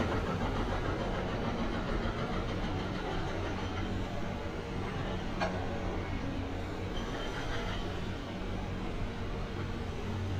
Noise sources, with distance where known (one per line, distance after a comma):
jackhammer, far